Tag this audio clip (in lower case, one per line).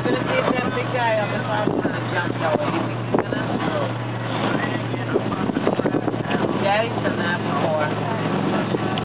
vehicle
water vehicle
speech
motorboat